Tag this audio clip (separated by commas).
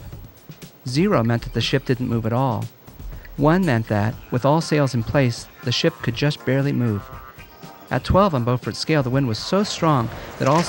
Speech, Music